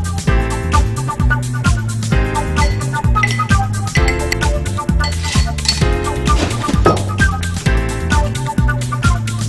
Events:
[0.00, 9.45] music
[2.56, 2.83] clink
[3.15, 3.47] clink
[3.91, 4.22] clink
[5.00, 5.19] clink
[5.39, 5.54] clink
[5.65, 5.88] clink
[6.24, 6.85] swoosh
[6.84, 7.06] tap

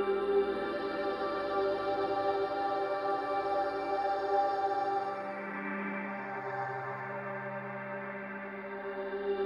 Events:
[0.00, 9.45] music

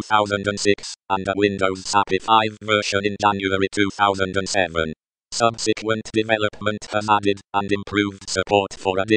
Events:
[7.51, 9.15] speech synthesizer

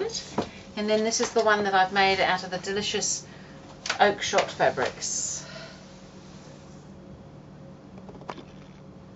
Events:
[0.00, 0.23] male speech
[0.00, 9.15] mechanisms
[0.31, 0.57] generic impact sounds
[0.71, 3.21] male speech
[3.18, 3.62] breathing
[3.84, 4.07] generic impact sounds
[3.96, 5.47] male speech
[4.97, 5.86] breathing
[8.04, 8.83] generic impact sounds

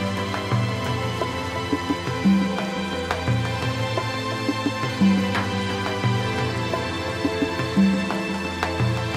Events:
[0.00, 9.15] music

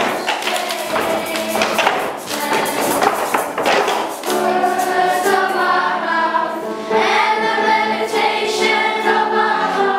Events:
[0.00, 1.60] choir
[0.00, 3.05] music
[0.00, 3.94] tap
[2.22, 3.06] choir
[4.18, 9.95] choir
[4.21, 4.35] tap
[4.21, 9.95] music

